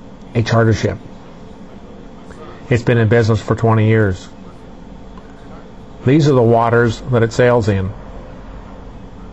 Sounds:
speech

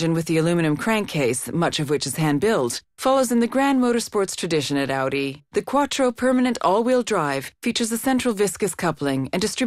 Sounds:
speech

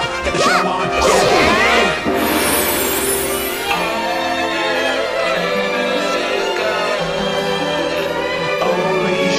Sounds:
music

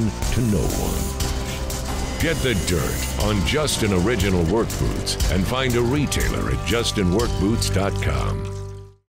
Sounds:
music, speech

